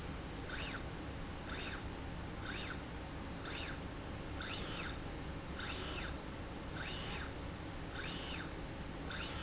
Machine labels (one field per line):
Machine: slide rail